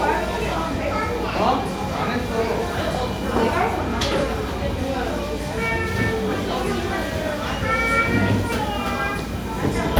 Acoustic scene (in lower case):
cafe